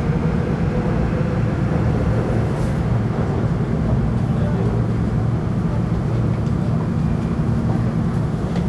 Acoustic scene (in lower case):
subway train